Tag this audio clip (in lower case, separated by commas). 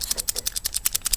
tools